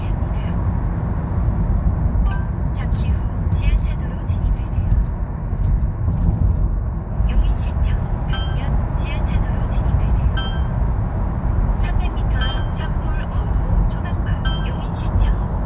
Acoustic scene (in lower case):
car